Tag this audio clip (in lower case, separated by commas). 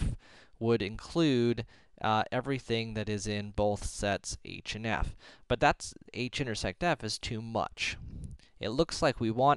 speech